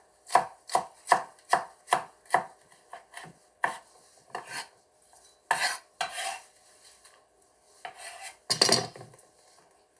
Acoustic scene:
kitchen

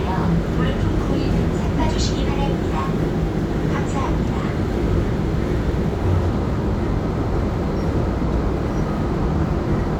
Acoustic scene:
subway train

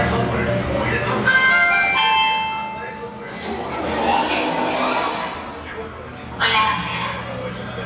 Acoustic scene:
elevator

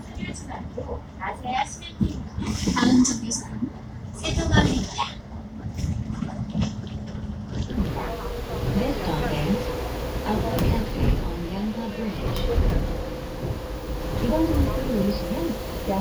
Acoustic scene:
bus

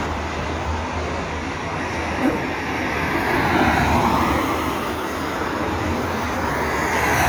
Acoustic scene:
street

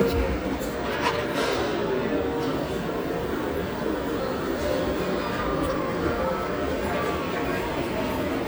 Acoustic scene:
restaurant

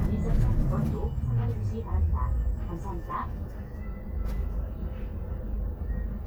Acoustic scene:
bus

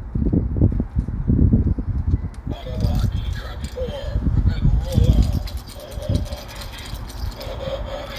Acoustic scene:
residential area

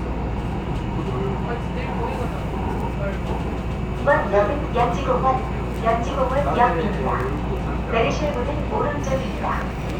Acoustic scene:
subway train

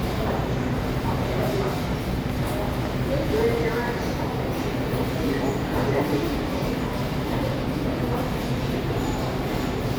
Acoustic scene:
subway station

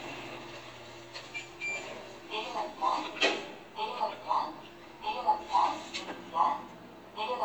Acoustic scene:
elevator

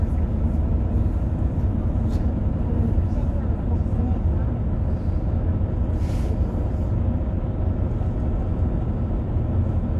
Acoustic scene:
bus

